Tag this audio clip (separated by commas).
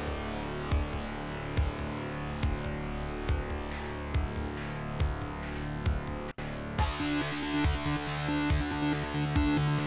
Music